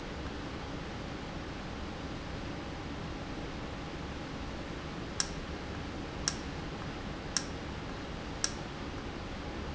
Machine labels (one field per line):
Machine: valve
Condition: normal